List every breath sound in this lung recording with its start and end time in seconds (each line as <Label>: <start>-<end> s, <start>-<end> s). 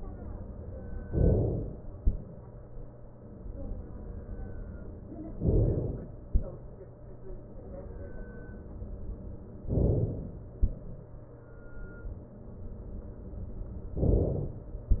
Inhalation: 1.10-2.00 s, 5.40-6.30 s, 9.68-10.58 s, 14.02-14.92 s